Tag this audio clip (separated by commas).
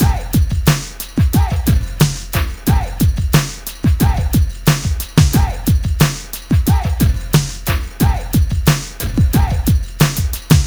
Percussion, Musical instrument, Drum kit, Music